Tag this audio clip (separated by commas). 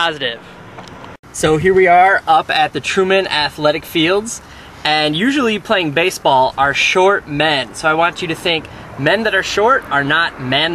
Speech, outside, urban or man-made